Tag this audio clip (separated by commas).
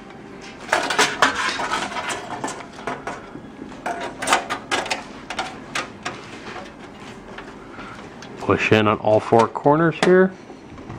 Speech, inside a small room